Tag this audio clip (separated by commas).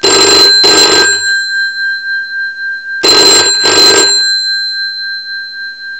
Telephone, Alarm